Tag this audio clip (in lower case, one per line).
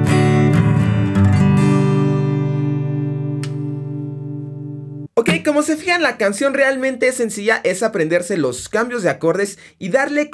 tapping guitar